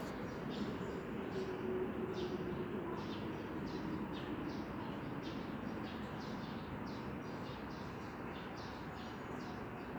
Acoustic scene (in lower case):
residential area